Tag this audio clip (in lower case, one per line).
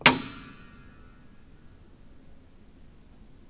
keyboard (musical)
music
musical instrument
piano